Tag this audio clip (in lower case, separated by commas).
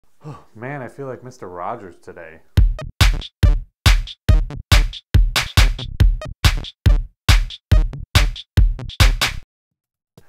speech, drum machine, music